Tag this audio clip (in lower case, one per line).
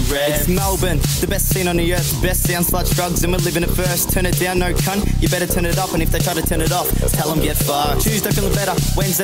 speech
music